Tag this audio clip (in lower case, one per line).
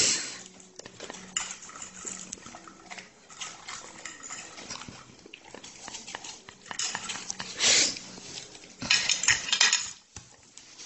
eating with cutlery